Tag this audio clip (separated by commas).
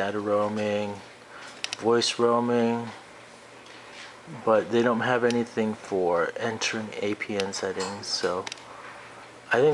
Speech